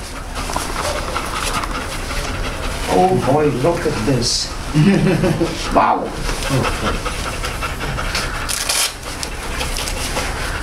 Dog panting and men talking in the background